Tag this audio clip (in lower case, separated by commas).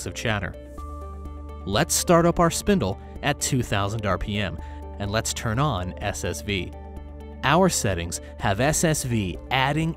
speech, music